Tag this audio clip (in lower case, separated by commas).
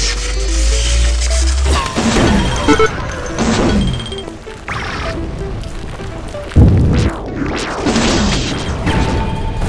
music, smash